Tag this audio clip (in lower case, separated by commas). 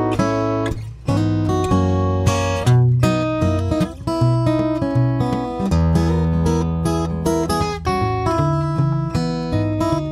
acoustic guitar, musical instrument, guitar, plucked string instrument